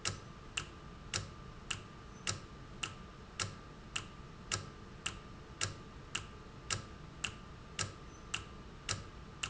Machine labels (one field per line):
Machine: valve